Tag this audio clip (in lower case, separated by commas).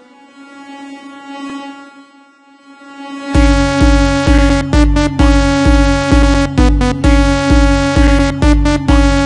music